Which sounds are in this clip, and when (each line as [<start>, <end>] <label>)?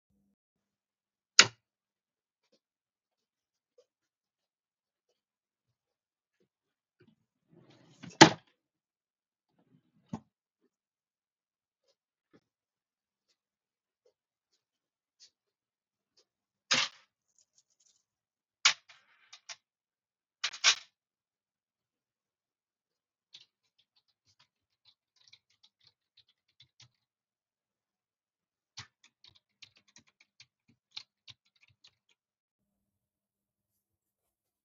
[0.39, 2.14] light switch
[7.13, 8.57] wardrobe or drawer
[16.39, 21.09] keyboard typing
[23.36, 27.51] keyboard typing
[28.70, 32.22] keyboard typing